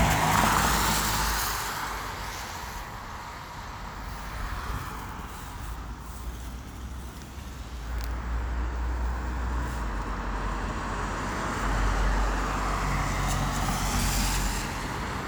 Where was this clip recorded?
on a street